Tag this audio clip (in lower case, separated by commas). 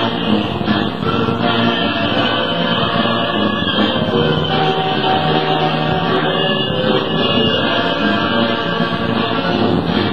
music, soul music